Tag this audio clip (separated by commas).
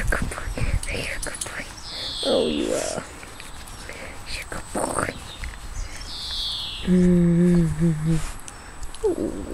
Speech, Animal, Dog, pets